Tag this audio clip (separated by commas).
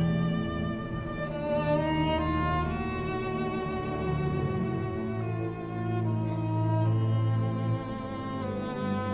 Music, Musical instrument, Violin